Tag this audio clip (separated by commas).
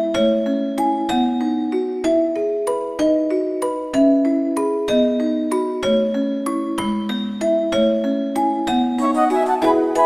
Glockenspiel, Marimba, Mallet percussion